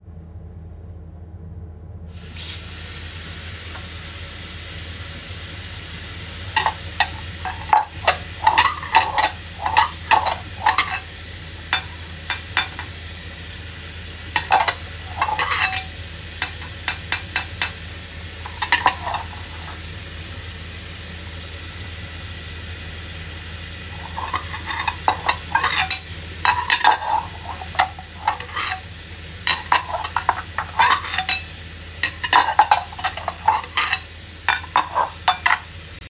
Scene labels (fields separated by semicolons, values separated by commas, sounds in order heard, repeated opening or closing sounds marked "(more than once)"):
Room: kitchen; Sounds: running water, cutlery and dishes